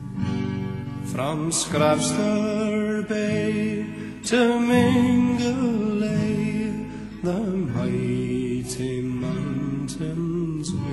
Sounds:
Music

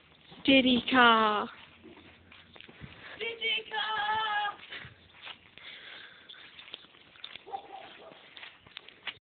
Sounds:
Speech

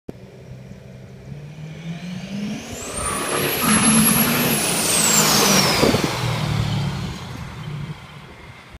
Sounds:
Vehicle

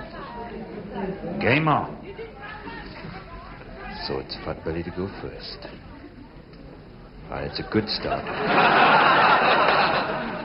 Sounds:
Speech

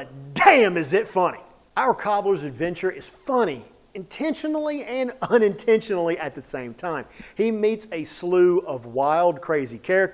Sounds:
Speech

